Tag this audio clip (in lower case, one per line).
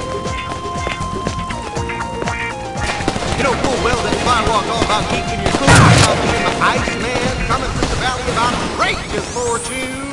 fusillade